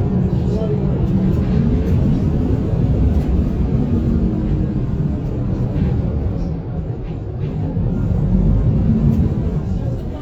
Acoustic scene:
bus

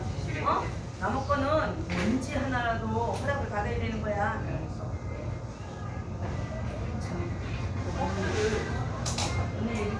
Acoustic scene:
crowded indoor space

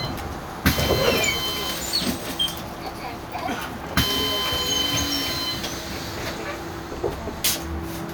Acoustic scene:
bus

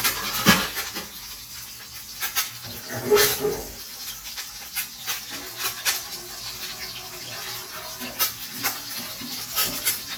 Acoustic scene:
kitchen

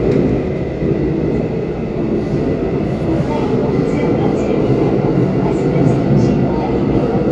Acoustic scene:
subway train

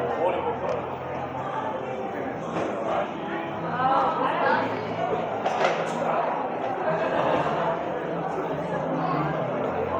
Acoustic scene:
cafe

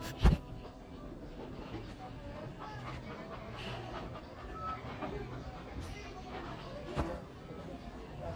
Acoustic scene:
crowded indoor space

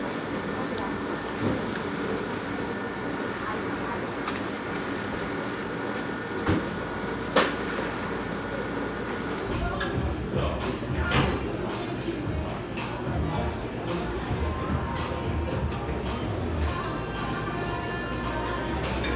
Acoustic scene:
cafe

